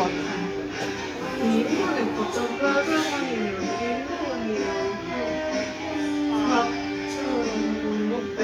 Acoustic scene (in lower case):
restaurant